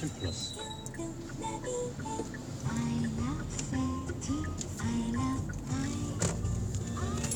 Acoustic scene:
car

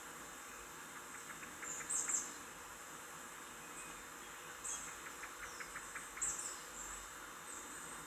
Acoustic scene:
park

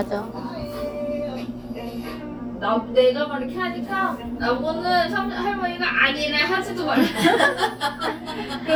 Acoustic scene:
cafe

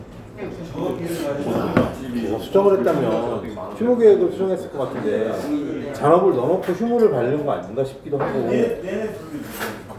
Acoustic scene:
restaurant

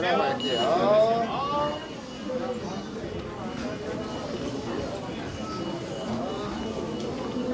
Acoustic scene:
crowded indoor space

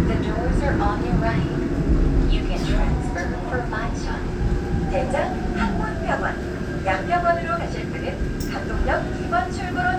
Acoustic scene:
subway train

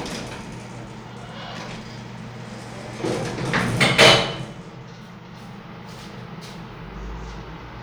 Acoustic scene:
elevator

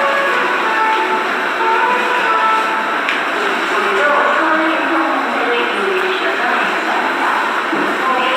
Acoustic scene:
subway station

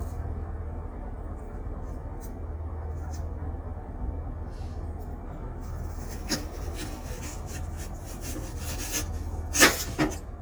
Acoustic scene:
kitchen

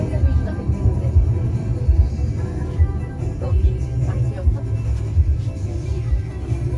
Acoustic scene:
car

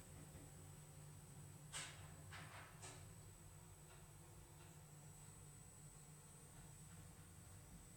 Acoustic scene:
elevator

